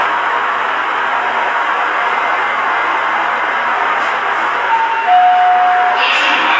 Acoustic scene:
elevator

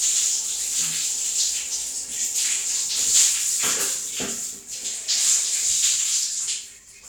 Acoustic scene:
restroom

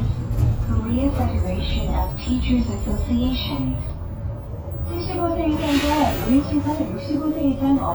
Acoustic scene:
bus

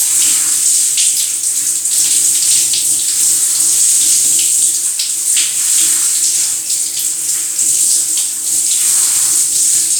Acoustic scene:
restroom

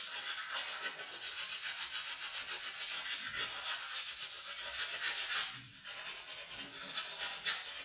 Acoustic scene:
restroom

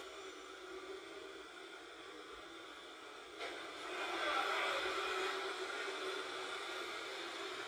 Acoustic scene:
subway train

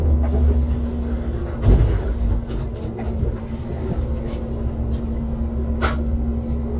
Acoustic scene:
bus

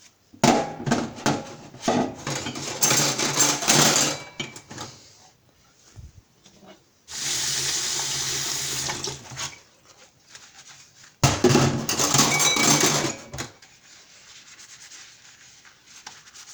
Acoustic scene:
kitchen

